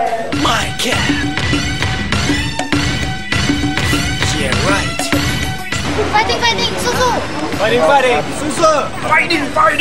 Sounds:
speech
music

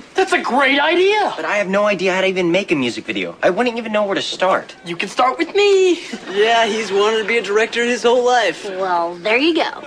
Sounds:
speech

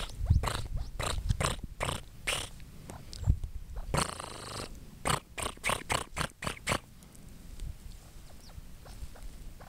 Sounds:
bird

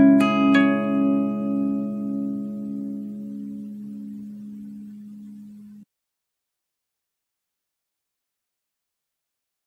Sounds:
strum
music
acoustic guitar
plucked string instrument
musical instrument
guitar

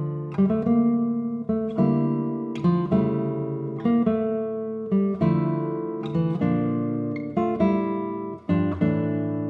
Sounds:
classical music
music

